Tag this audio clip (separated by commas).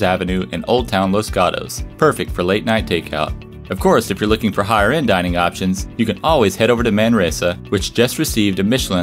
Music, Speech